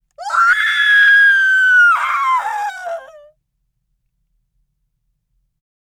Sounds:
screaming, human voice

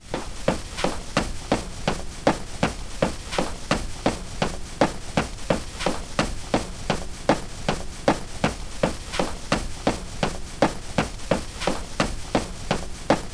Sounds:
run

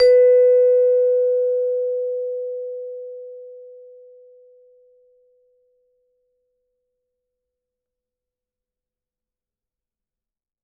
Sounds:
mallet percussion, music, percussion, musical instrument

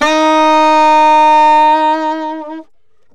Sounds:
music, musical instrument, wind instrument

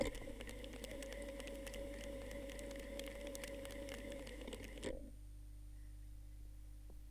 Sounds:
mechanisms

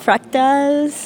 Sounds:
human voice, speech

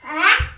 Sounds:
speech, child speech, human voice

